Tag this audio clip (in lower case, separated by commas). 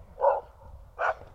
domestic animals, animal, dog, bark